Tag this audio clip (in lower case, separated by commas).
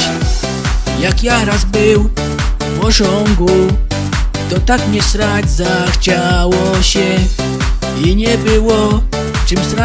speech, music